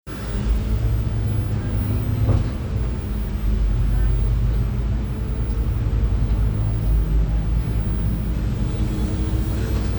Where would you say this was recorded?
on a bus